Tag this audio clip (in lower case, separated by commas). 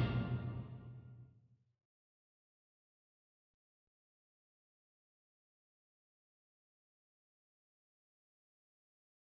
music